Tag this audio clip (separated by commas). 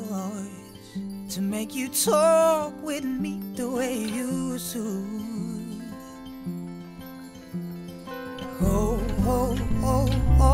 Music